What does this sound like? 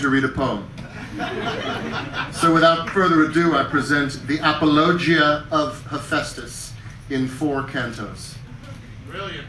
A man talks while some people laughs and cheers